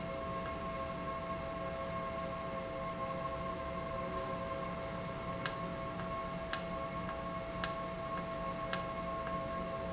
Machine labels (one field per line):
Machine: valve